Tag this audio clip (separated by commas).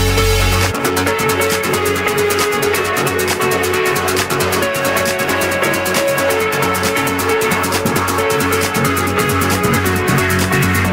Music, Electronic music